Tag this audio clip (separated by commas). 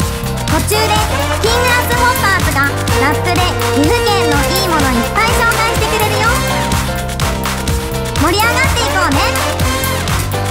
Music, Funny music, Speech